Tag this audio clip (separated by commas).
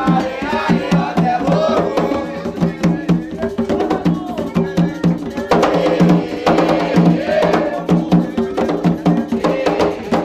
Music